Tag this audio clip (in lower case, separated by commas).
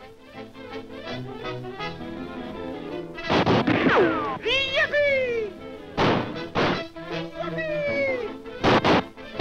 music